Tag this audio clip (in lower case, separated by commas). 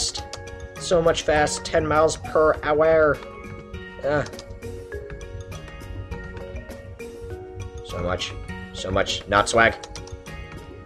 speech, music